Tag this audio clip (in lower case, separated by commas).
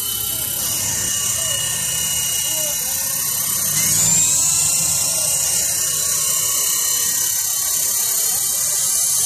helicopter, speech